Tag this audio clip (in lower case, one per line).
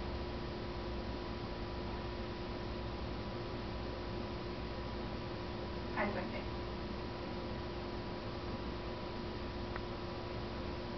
speech